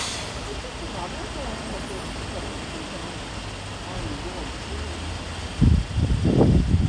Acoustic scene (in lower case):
street